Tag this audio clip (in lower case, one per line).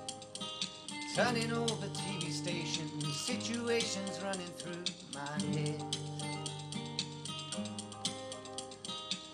music
male singing